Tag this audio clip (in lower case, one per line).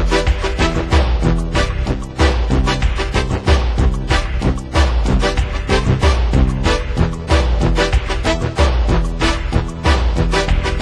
music